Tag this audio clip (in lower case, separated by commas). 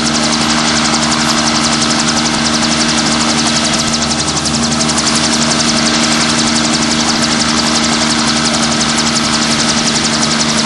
vehicle